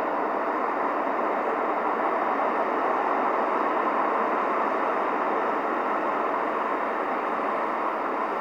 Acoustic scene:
street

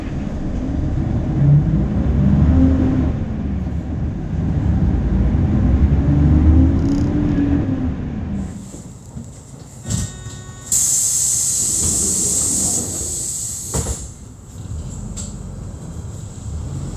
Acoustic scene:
bus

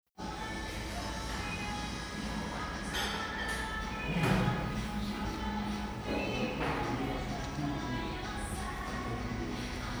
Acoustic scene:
cafe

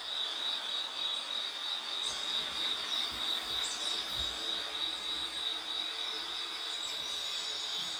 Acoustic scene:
park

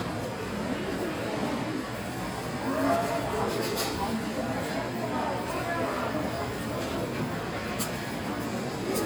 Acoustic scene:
crowded indoor space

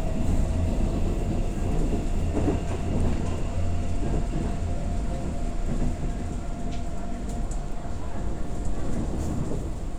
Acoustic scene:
subway train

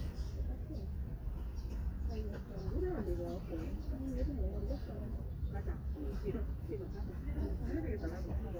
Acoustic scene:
park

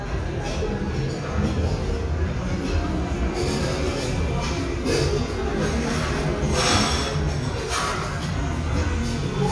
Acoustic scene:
restaurant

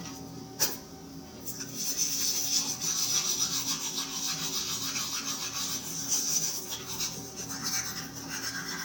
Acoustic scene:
restroom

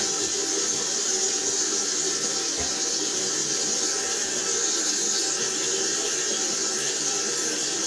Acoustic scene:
restroom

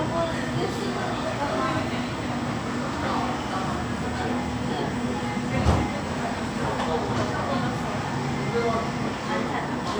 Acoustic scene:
cafe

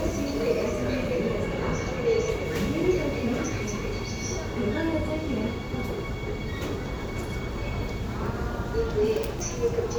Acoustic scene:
subway station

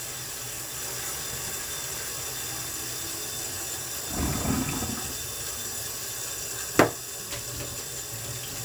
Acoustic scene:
kitchen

